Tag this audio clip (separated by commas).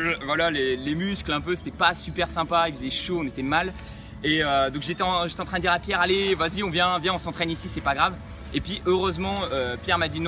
Speech